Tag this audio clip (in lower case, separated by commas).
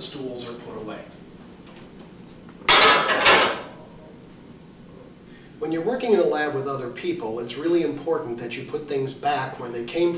speech, inside a large room or hall